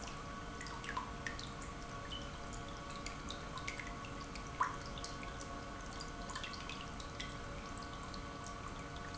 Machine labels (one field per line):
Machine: pump